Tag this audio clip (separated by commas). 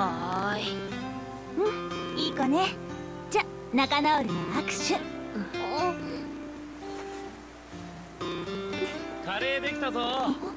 Speech, Music